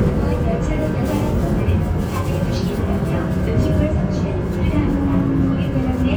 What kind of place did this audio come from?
subway train